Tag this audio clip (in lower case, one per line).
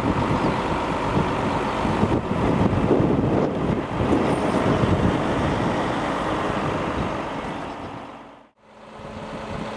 vehicle